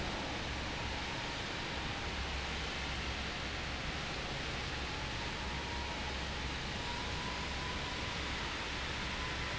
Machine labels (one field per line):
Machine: fan